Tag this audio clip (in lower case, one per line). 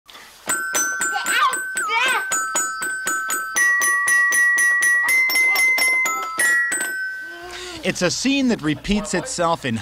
speech
music